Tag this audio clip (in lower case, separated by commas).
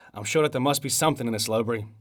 speech, human voice